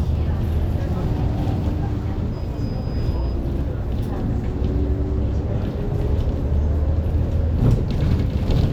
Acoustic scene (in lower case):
bus